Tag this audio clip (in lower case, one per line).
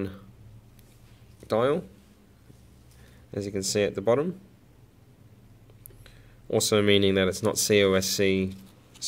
speech